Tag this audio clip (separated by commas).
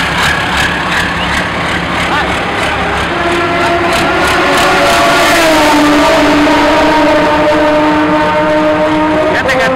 Speech, Vehicle, Truck